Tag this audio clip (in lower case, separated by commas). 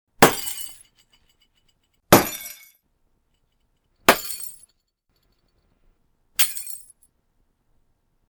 shatter, glass